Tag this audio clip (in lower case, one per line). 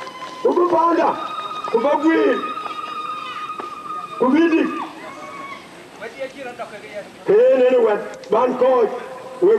speech
monologue
man speaking
speech synthesizer